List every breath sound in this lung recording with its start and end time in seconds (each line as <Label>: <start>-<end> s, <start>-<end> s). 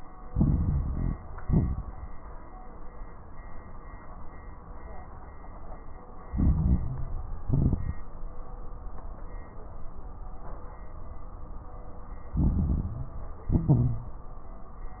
Inhalation: 0.23-1.18 s, 6.25-7.39 s, 12.37-13.47 s
Exhalation: 1.35-2.07 s, 7.45-8.07 s, 13.49-14.21 s
Crackles: 0.23-1.18 s, 1.35-2.07 s, 6.25-7.39 s, 7.45-8.07 s, 12.37-13.47 s, 13.49-14.21 s